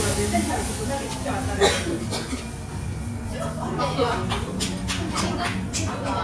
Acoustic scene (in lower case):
restaurant